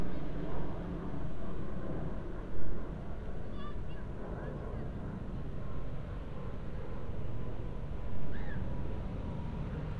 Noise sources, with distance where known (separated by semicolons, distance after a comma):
person or small group shouting